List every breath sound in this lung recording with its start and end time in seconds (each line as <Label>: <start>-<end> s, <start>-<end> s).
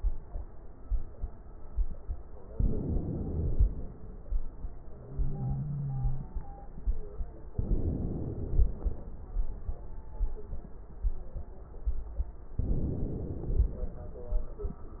Inhalation: 2.56-3.96 s, 7.57-8.98 s, 12.63-14.04 s